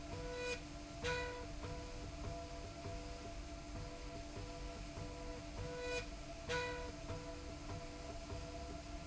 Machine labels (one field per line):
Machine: slide rail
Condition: normal